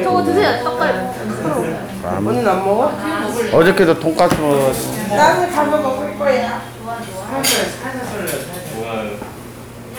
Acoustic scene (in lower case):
crowded indoor space